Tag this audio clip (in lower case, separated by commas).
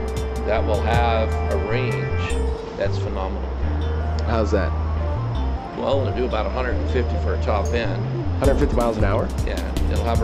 speech, music